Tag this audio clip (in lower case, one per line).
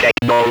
speech
human voice